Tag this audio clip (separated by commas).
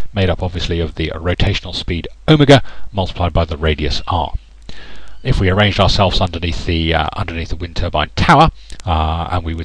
Speech